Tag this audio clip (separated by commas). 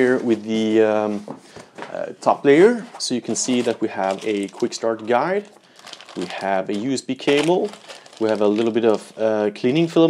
Speech